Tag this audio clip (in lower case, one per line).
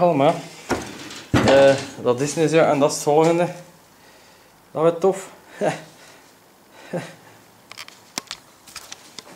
speech